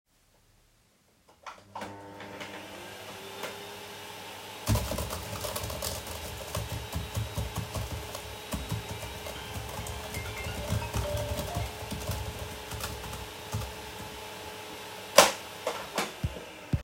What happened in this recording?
Someone switched on the vacuum cleaner and I started typing the keyboard at my laptop. Suddenly, the phone was ringing one time, but I did not answer it. After it was ringing, I stoped typing and almost at the same time, also the vacuum cleaner was turned off.